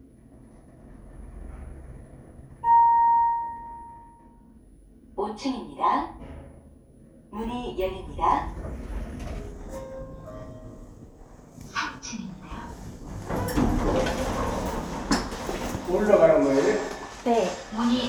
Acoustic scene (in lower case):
elevator